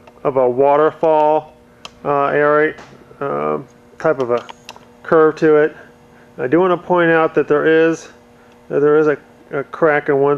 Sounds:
Speech

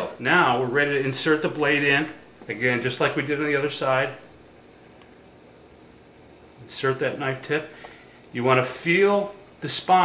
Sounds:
Speech

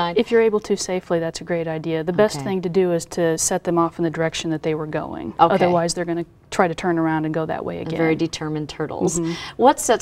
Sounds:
Speech

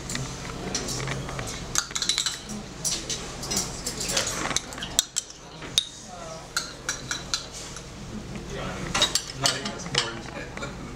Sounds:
Speech, inside a public space, dishes, pots and pans

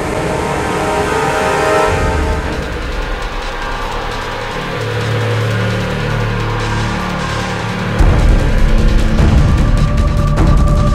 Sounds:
Music

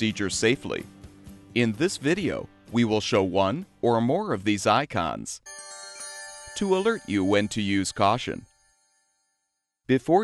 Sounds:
Speech

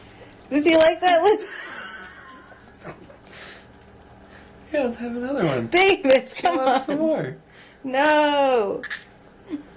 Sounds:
Spray, Speech

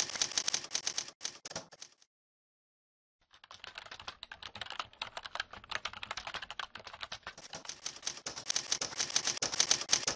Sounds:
typing on typewriter

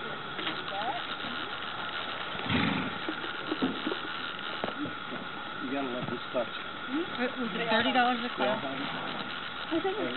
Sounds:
Animal, Horse

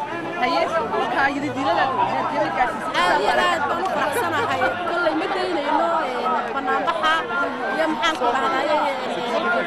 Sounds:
Speech, outside, urban or man-made

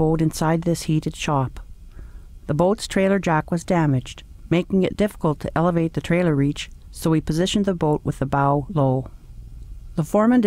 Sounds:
Speech

